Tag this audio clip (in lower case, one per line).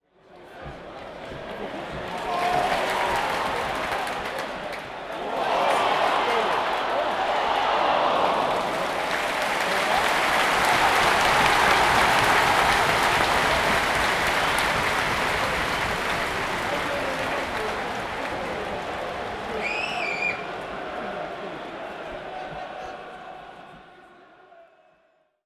human group actions
cheering